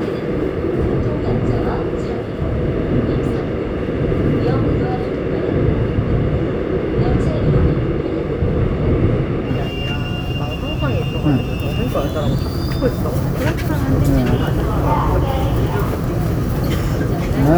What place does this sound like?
subway train